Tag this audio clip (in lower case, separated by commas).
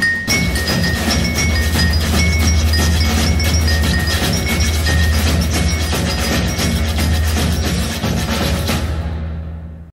music